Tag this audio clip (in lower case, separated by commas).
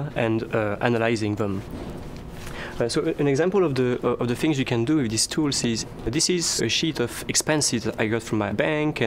speech